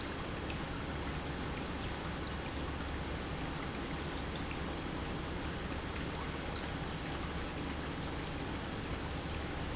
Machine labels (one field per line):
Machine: pump